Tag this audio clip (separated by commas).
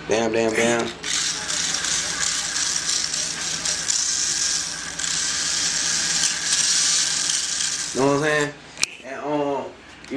Speech, inside a small room